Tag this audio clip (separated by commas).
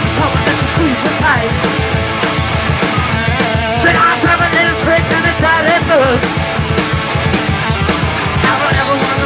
Male singing, Music